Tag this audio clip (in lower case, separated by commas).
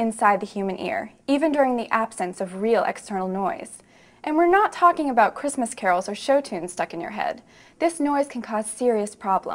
speech, woman speaking